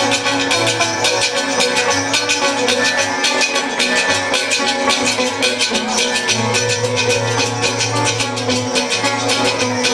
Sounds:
maraca
music

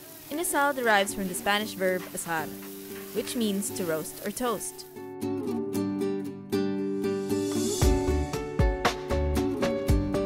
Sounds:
speech
music

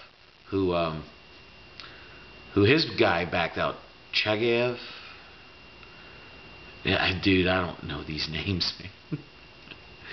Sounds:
speech
inside a small room

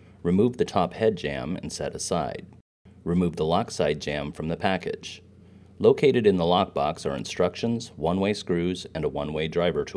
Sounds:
speech

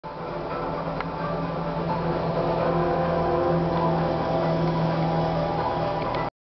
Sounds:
vehicle

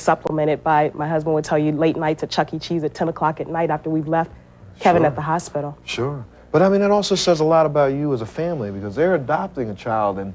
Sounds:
woman speaking

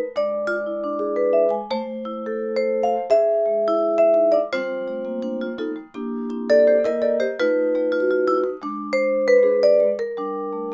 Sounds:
playing vibraphone

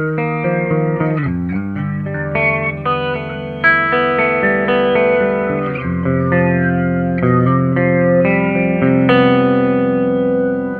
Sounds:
distortion
music

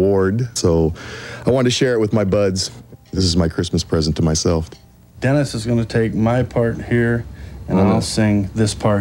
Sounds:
speech

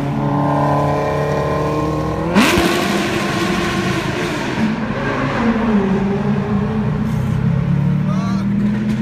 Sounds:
speech

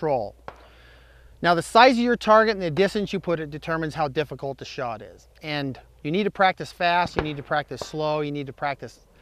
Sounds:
speech

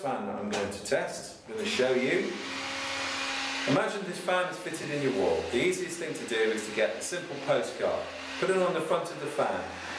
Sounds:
mechanical fan
speech

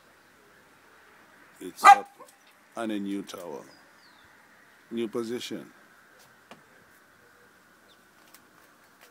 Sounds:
speech

